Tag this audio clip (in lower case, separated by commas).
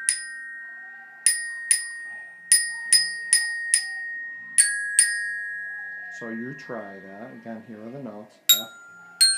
glockenspiel, xylophone, mallet percussion